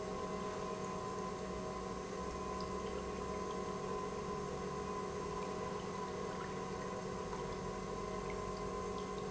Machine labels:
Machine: pump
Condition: normal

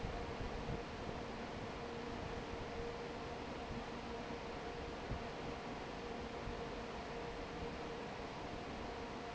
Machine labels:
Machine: fan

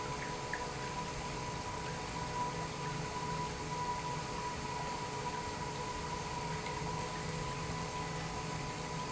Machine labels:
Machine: pump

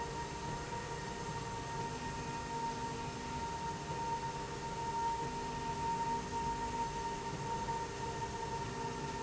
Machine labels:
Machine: slide rail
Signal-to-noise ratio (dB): -6 dB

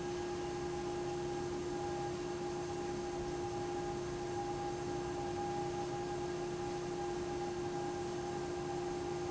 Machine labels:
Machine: fan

